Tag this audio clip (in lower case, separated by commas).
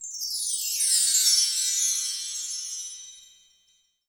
chime, bell, wind chime